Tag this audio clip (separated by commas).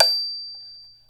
Music, Mallet percussion, Marimba, Percussion, Musical instrument